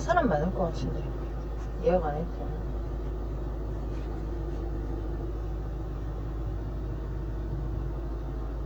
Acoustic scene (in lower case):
car